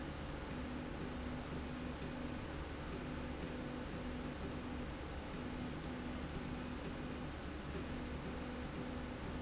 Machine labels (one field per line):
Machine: slide rail